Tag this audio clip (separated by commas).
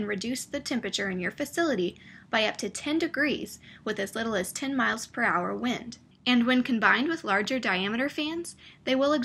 Speech